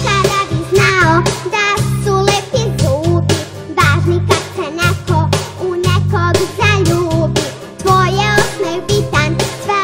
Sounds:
Music, Music for children, Singing

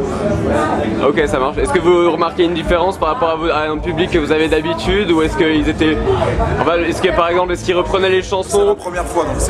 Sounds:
Speech, Crowd, Music

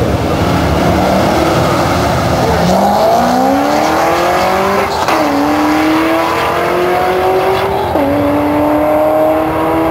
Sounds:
Motor vehicle (road), Car, Vehicle

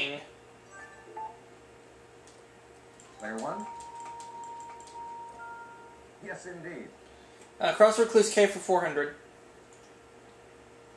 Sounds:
Television, Speech

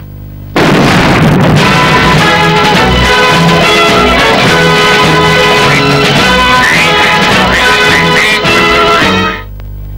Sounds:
Quack, Music

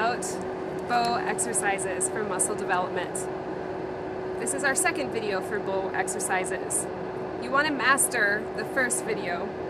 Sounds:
Speech

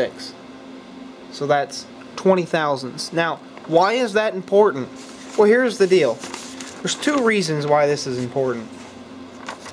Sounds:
inside a large room or hall, Speech

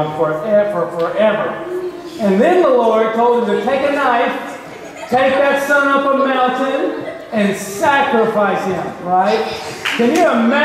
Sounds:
Speech

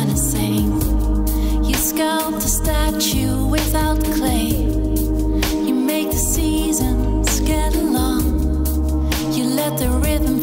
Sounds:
Music

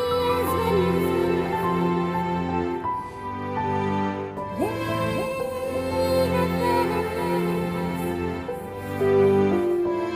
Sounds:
Music, Musical instrument

